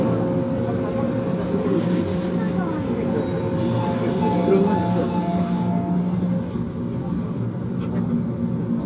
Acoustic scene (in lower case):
subway train